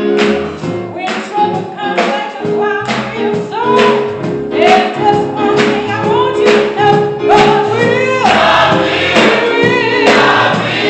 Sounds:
Choir, Music, Female singing

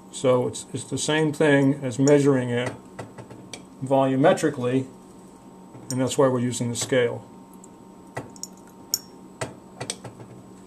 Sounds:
Speech

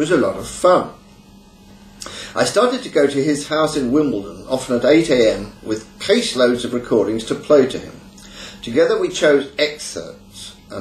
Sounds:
Speech

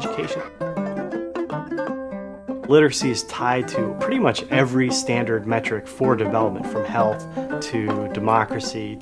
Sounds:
Speech, Music

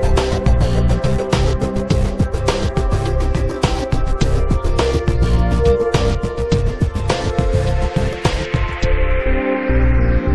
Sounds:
Music

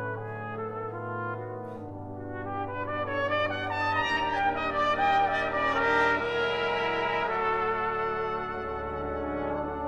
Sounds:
Brass instrument, Trumpet, Music, Classical music, Orchestra, Musical instrument

